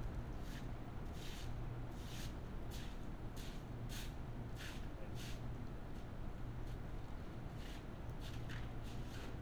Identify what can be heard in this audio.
background noise